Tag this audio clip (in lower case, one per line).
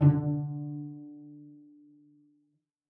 musical instrument
music
bowed string instrument